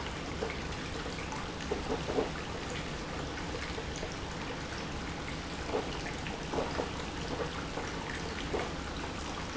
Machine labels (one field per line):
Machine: pump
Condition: abnormal